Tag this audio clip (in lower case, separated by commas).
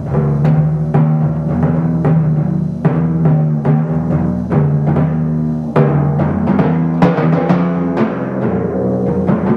musical instrument, percussion, drum, drum kit, timpani, music